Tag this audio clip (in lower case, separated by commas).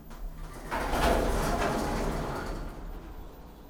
home sounds, sliding door, door